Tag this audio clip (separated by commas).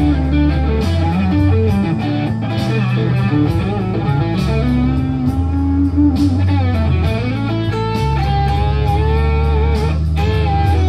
Electric guitar, Strum, Music, Guitar, Musical instrument, Plucked string instrument